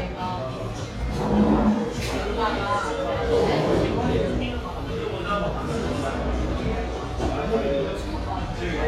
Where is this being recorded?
in a cafe